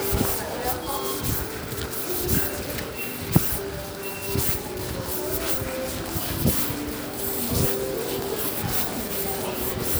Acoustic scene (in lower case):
crowded indoor space